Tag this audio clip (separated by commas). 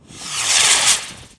Fireworks, Explosion